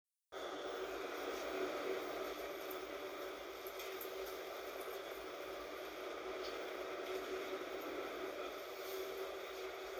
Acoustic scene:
bus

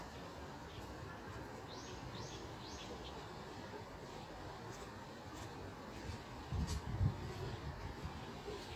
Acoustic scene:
park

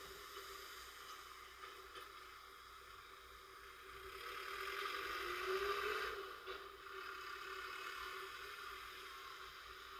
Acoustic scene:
residential area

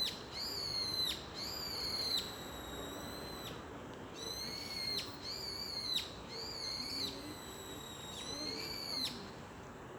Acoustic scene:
park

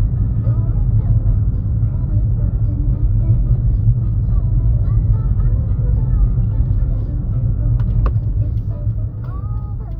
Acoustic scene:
car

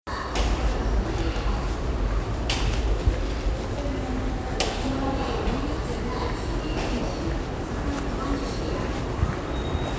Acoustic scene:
subway station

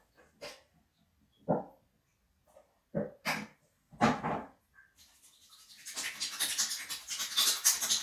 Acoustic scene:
restroom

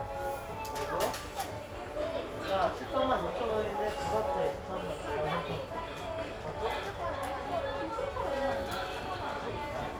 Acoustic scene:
crowded indoor space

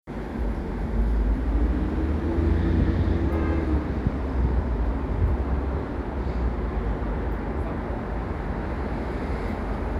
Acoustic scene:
street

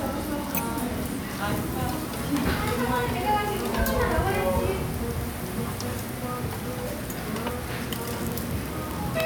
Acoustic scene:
restaurant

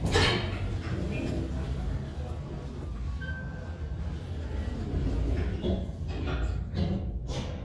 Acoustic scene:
elevator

